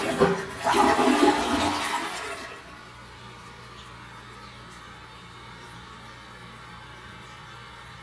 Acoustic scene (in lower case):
restroom